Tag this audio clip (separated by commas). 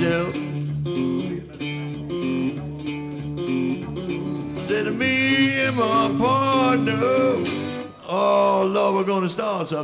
Music, Speech, Blues